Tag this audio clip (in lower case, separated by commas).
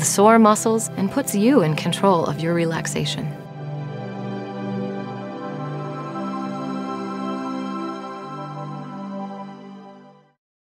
music, speech, new-age music